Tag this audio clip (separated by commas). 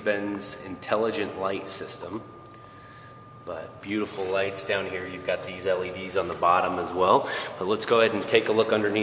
Speech